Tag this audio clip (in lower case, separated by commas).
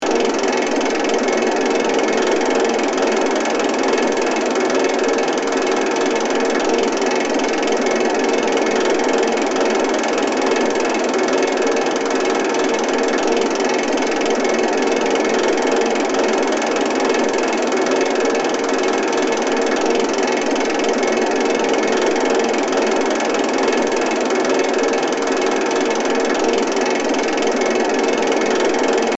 mechanisms